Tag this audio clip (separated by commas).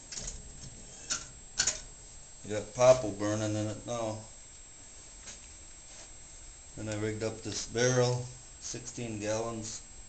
Speech